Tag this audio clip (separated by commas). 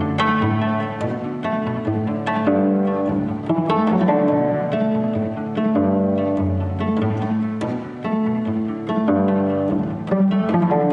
Bowed string instrument, Cello, Pizzicato